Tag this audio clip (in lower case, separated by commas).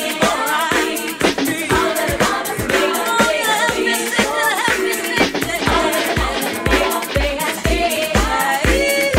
pop music, music